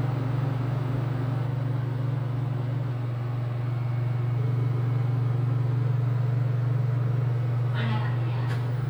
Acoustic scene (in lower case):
elevator